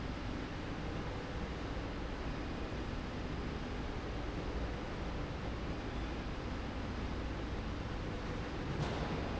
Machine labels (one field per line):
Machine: slide rail